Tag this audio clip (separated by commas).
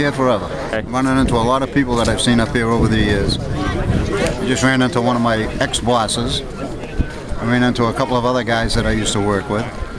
Speech